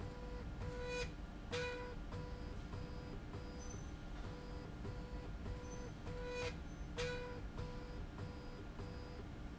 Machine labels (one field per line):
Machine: slide rail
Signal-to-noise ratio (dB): 6 dB